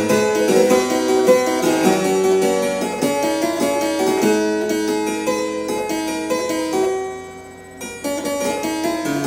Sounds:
playing harpsichord

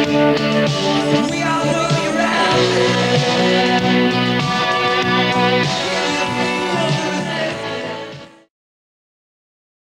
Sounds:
Music

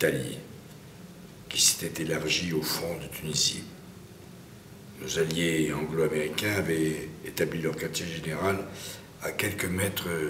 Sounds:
Speech

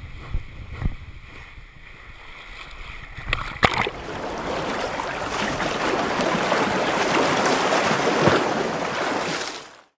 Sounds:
Water

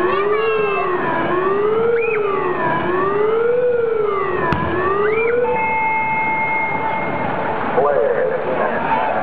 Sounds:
Speech

